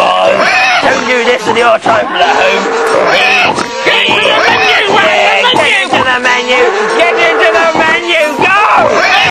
Men speak with some squealing and oinking